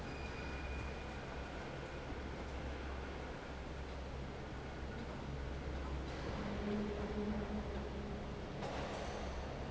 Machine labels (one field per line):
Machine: fan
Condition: normal